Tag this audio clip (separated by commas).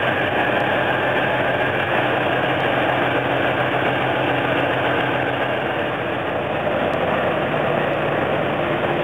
Vehicle, Truck